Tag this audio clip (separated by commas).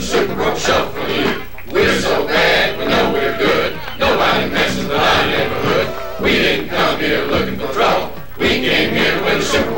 Music